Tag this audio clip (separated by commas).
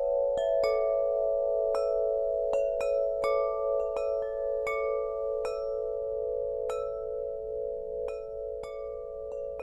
wind chime